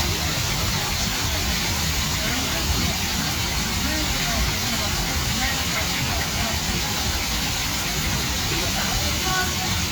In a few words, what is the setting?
park